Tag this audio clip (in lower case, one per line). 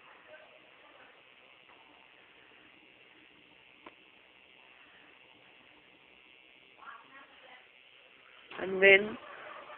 speech